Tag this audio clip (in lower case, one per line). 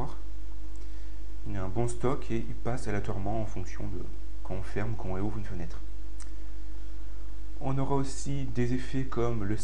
speech